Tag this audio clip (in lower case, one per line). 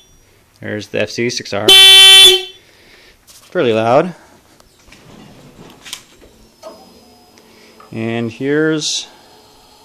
car horn
motorcycle
speech
vehicle